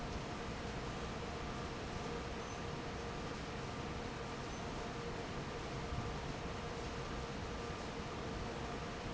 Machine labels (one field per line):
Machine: fan